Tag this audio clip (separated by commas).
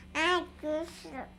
Human voice, Speech